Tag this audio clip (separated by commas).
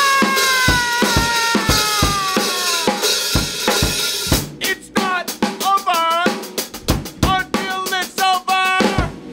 playing drum kit, Drum, Rimshot, Snare drum, Bass drum, Drum kit, Percussion